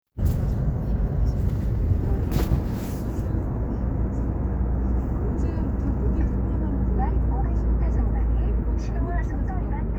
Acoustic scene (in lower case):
car